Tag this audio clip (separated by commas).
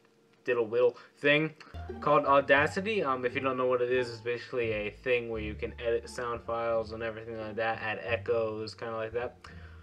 Speech